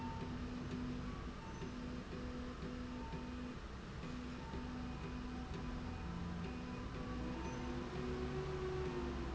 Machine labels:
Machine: slide rail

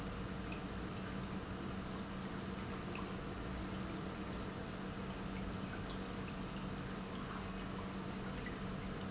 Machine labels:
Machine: pump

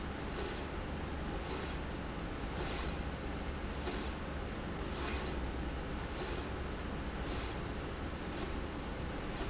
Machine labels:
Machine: slide rail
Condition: normal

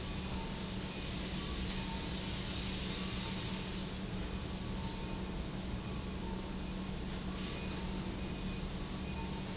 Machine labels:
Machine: pump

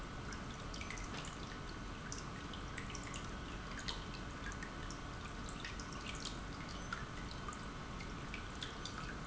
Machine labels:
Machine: pump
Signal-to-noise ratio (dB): 6 dB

